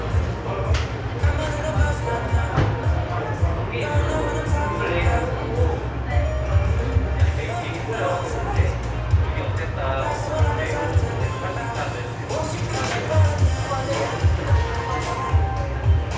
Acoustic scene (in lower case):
cafe